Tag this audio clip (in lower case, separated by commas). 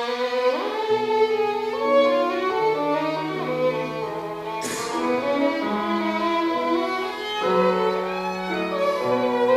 bowed string instrument, music, violin, musical instrument